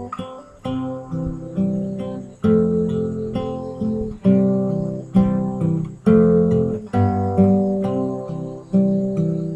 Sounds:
music, musical instrument, guitar, plucked string instrument

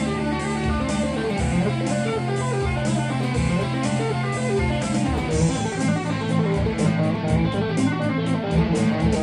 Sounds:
heavy metal, music, tapping (guitar technique)

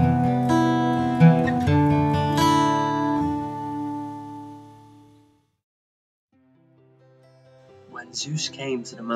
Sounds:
speech, music

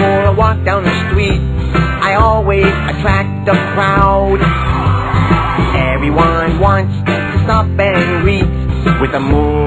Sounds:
music

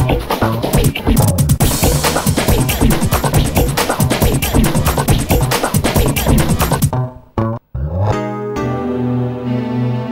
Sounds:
music

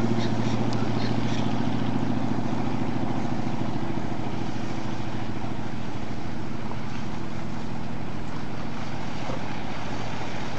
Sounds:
speedboat acceleration, boat, speedboat, vehicle

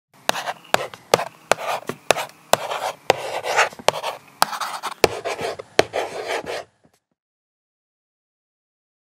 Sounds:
silence

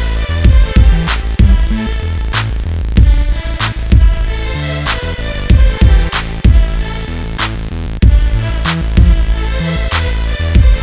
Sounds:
music, pop music

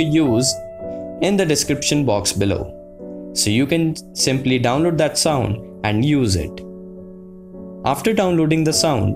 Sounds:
typing on typewriter

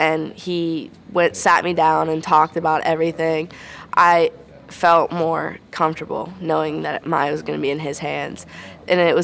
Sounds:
speech

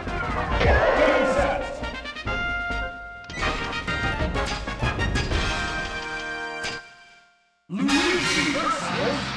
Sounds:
speech, music

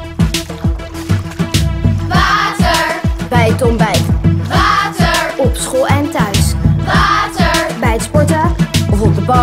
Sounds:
music, gurgling

